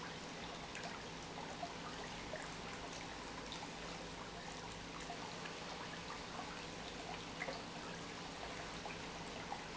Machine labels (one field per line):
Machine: pump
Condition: normal